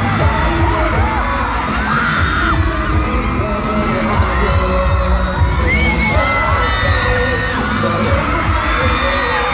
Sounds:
Music

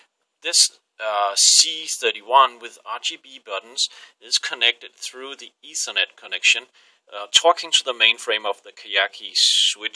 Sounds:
Speech

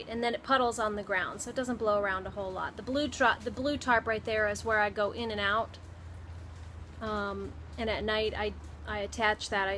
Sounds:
Speech

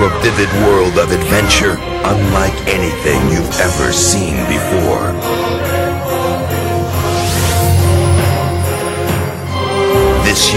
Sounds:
Music, Speech

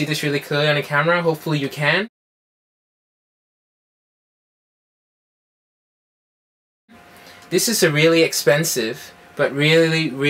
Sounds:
Speech

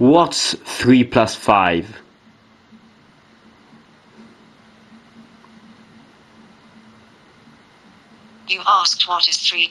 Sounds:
Speech, Telephone

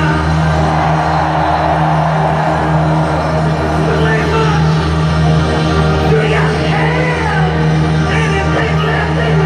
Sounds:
Music, Bellow

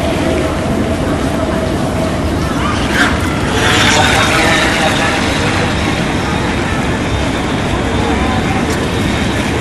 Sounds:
Motorboat, Speech

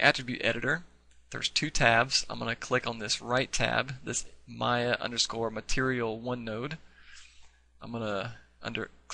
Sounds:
Speech

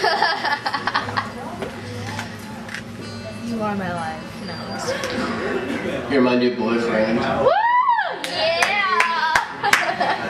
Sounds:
Speech, Music

